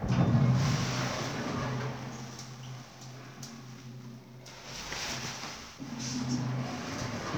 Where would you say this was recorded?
in an elevator